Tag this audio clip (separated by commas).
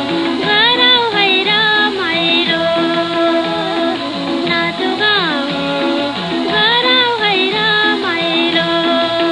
Music, Radio